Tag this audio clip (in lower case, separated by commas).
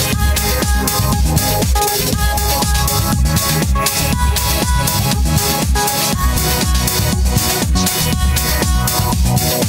disco, music